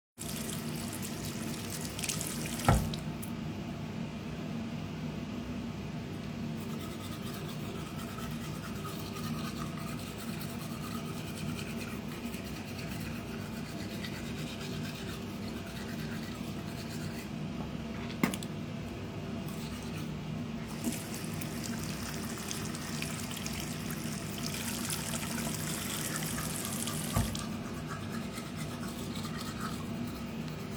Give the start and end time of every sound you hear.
0.0s-3.3s: running water
20.8s-27.5s: running water

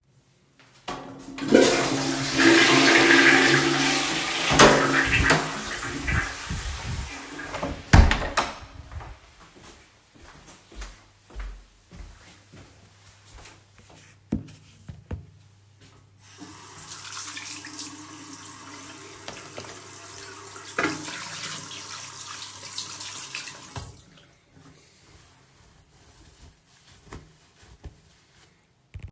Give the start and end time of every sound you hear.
0.8s-9.3s: toilet flushing
4.6s-6.1s: door
7.6s-9.3s: door
9.4s-16.2s: footsteps
16.3s-24.9s: running water
26.8s-29.1s: footsteps

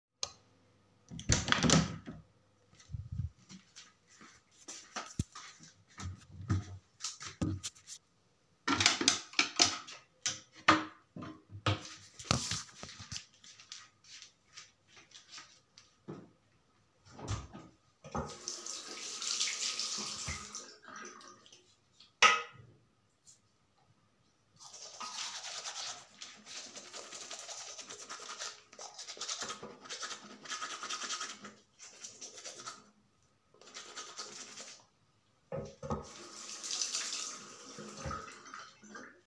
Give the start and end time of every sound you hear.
0.0s-0.6s: light switch
1.0s-2.5s: door
17.9s-21.1s: running water
35.9s-39.2s: running water

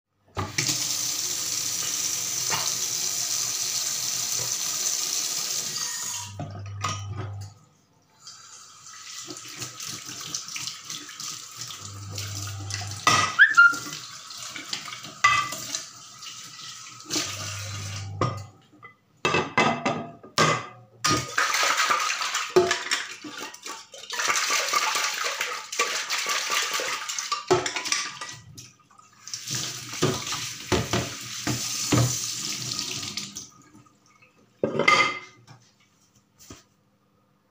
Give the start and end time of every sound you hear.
0.3s-7.1s: running water
8.2s-18.7s: running water
12.8s-13.3s: cutlery and dishes
13.4s-13.9s: phone ringing
15.1s-15.7s: cutlery and dishes
18.3s-18.7s: cutlery and dishes
18.9s-23.8s: cutlery and dishes
23.9s-28.5s: cutlery and dishes
29.1s-32.9s: running water
29.2s-33.8s: cutlery and dishes
34.4s-35.5s: cutlery and dishes

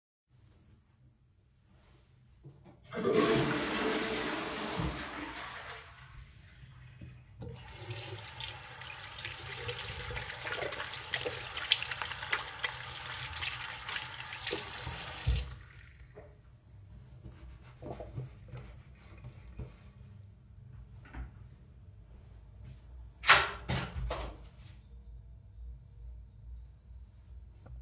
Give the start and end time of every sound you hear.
2.7s-6.2s: toilet flushing
7.5s-15.9s: running water
23.0s-24.5s: door

